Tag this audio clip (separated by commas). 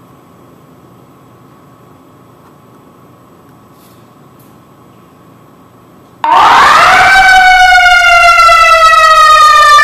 Siren